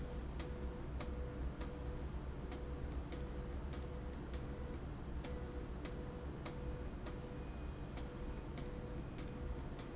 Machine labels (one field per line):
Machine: slide rail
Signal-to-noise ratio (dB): 0 dB